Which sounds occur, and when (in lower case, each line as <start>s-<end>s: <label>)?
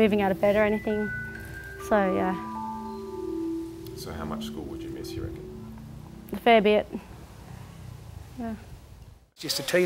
0.0s-1.1s: woman speaking
0.0s-6.8s: music
0.0s-6.8s: conversation
0.0s-9.3s: wind
0.3s-0.6s: generic impact sounds
0.9s-1.8s: motor vehicle (road)
1.3s-1.7s: generic impact sounds
1.8s-2.4s: woman speaking
2.8s-3.1s: car horn
3.6s-9.2s: motor vehicle (road)
3.8s-3.9s: tick
3.9s-5.4s: male speech
5.3s-5.4s: tick
5.7s-5.8s: generic impact sounds
6.0s-6.1s: generic impact sounds
6.3s-6.8s: woman speaking
6.9s-7.0s: human voice
8.4s-8.6s: human voice
9.4s-9.8s: male speech
9.4s-9.7s: human voice